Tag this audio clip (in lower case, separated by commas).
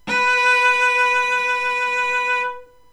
bowed string instrument, music, musical instrument